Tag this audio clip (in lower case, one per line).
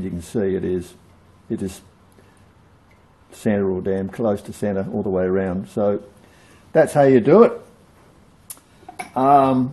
speech